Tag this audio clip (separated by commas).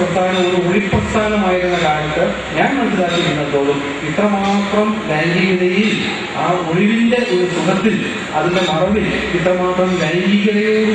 Speech, man speaking, Narration